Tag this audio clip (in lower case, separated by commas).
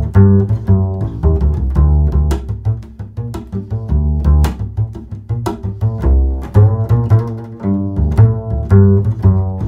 music